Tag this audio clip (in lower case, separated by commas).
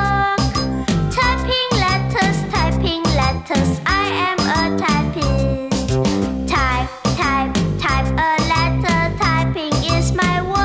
music, music for children